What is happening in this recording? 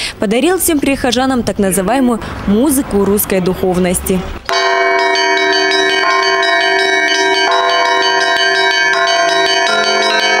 A woman speaks, traffic in the distance, multiple bells are rung